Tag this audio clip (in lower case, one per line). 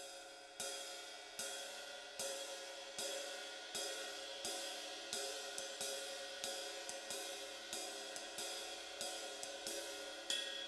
cymbal
musical instrument
hi-hat
music
playing cymbal